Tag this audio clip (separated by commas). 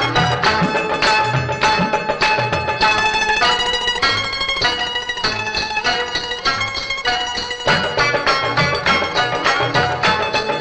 Music, Music of Bollywood